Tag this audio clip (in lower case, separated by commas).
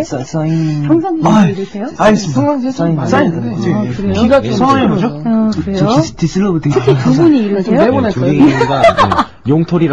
speech